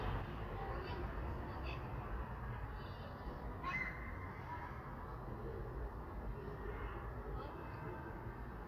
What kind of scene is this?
residential area